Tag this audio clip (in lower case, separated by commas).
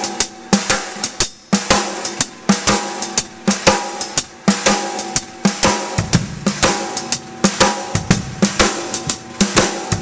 snare drum, bass drum, percussion, drum, drum kit, rimshot